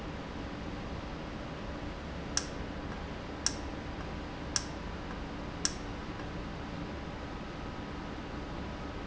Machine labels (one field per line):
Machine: valve